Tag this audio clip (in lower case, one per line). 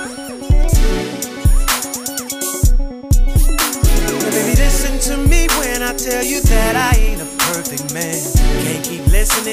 music